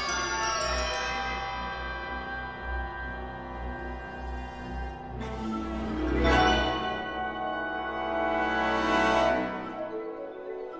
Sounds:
percussion
music

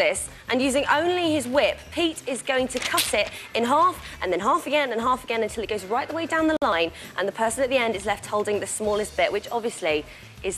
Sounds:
speech
music

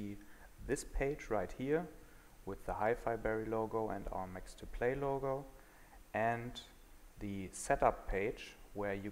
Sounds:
speech

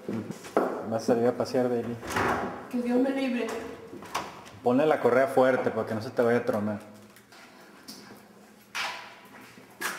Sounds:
speech
footsteps

